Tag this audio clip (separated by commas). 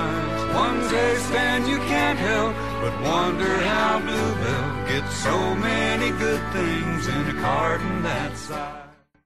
Music